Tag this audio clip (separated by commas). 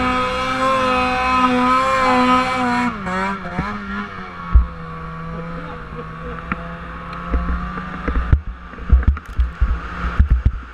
driving snowmobile